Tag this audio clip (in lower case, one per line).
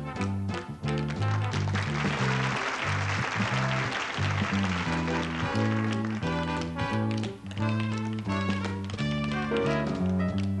music